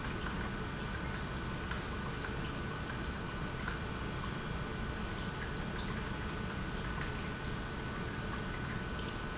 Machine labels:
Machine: pump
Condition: normal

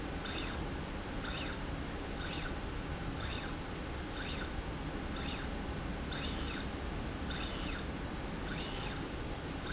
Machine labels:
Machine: slide rail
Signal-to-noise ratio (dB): -6 dB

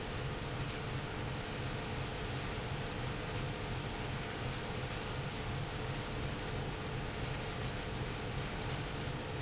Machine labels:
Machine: pump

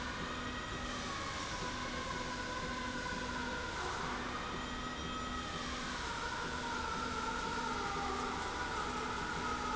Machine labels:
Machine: slide rail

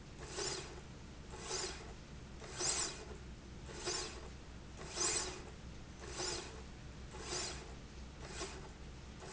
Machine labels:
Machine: slide rail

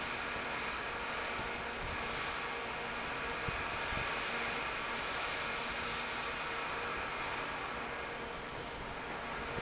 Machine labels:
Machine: fan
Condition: normal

